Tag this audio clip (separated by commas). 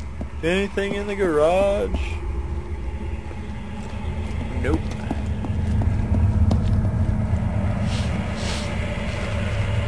Speech